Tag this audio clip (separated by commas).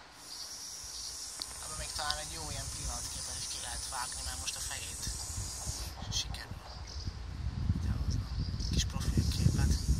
snake hissing